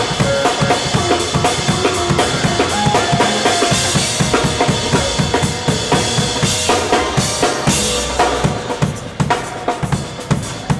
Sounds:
Drum, Music, Musical instrument, Drum kit, Rimshot

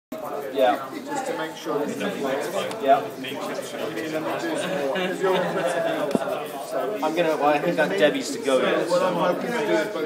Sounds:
Speech

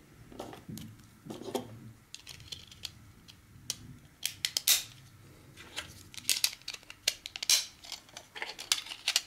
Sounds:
Tap

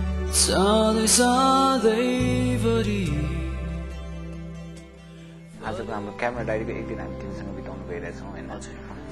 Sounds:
Music, Speech

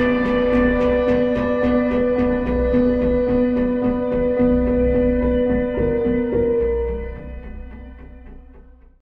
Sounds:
Music

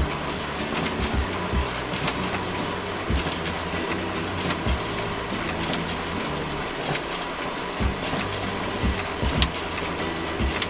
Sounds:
Printer, Music, inside a small room

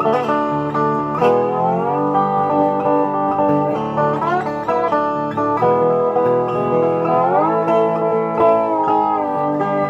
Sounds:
slide guitar

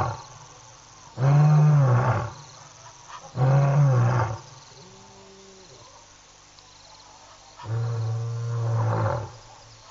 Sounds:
Roar, Animal

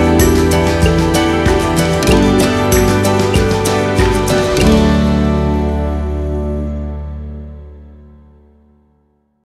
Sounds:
Music

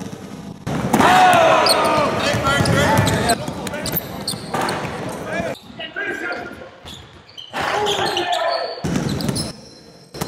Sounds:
Basketball bounce, Speech

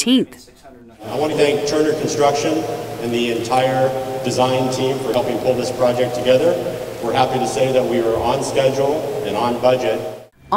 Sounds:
Speech

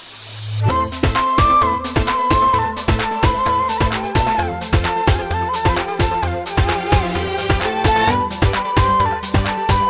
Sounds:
Music, Exciting music

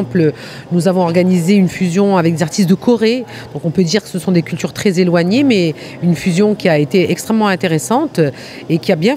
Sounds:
Speech

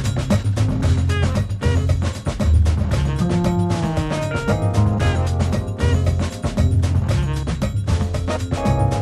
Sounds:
Keyboard (musical), Synthesizer, Music, Piano, Musical instrument

